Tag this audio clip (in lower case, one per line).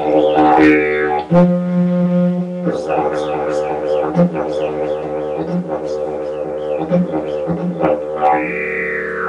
didgeridoo
music